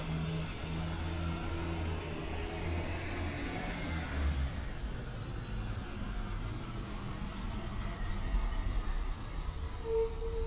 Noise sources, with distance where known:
large-sounding engine, near

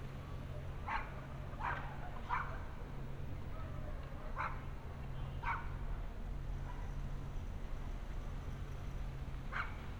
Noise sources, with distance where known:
dog barking or whining

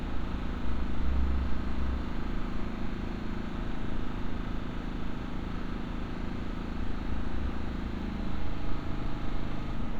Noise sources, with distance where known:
engine of unclear size

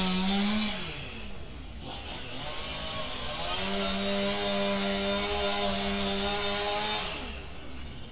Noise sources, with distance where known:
chainsaw, near

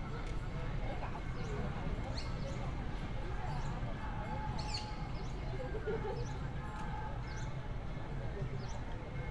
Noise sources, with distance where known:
unidentified alert signal; person or small group talking, near

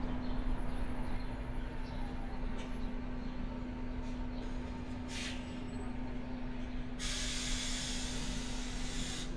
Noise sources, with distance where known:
large-sounding engine

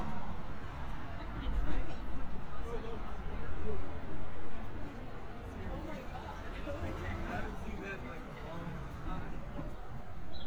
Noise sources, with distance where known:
person or small group talking

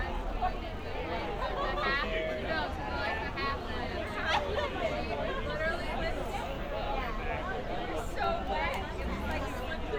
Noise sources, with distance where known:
person or small group talking, near

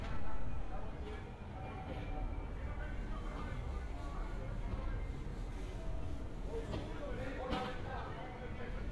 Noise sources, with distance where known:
unidentified human voice, far

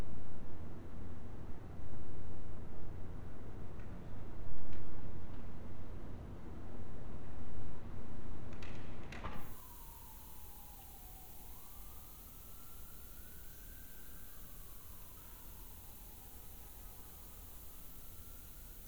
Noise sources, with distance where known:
background noise

